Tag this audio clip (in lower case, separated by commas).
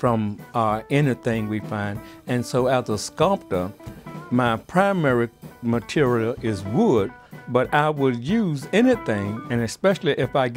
speech, music